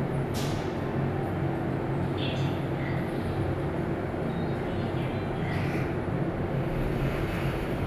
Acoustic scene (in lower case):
elevator